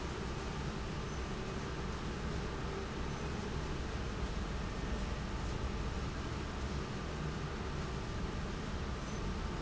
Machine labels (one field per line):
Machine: fan